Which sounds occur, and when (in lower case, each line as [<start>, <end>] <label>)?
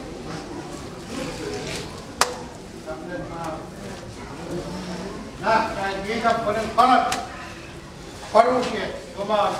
[0.00, 9.55] background noise
[2.07, 2.50] generic impact sounds
[5.38, 7.24] male speech
[8.32, 8.91] male speech
[9.16, 9.55] male speech